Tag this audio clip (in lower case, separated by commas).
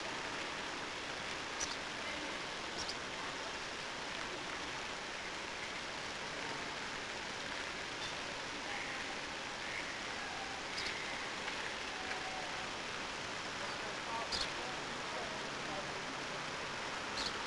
animal, livestock, fowl